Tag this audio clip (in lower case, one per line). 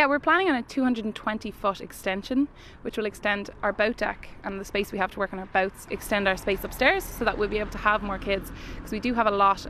speech